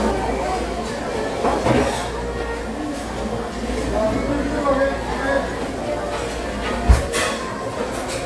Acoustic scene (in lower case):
restaurant